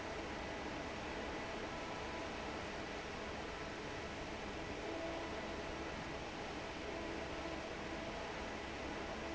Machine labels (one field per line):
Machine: fan